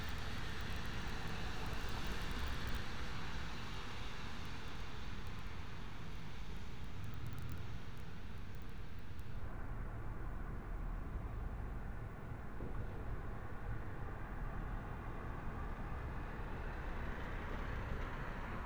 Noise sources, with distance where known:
medium-sounding engine

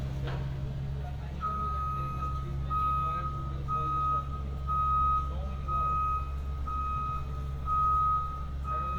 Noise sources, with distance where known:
reverse beeper, near; person or small group talking

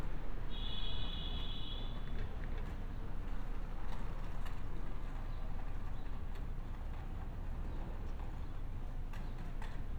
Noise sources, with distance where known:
non-machinery impact; car horn

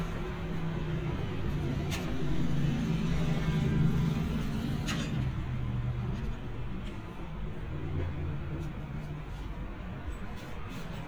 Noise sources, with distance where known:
engine of unclear size

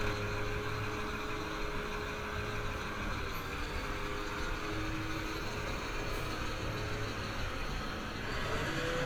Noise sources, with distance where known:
large-sounding engine, near

